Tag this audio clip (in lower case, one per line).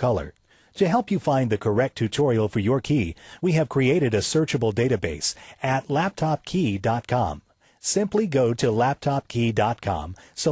speech